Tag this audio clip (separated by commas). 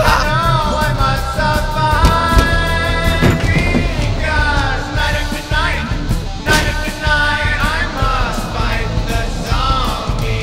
Music